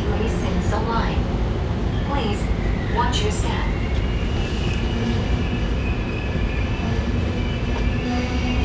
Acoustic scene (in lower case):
subway train